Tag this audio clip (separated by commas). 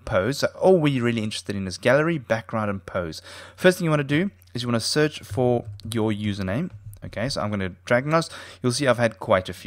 Speech